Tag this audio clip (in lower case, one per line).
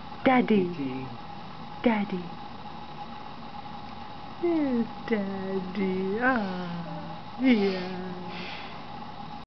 speech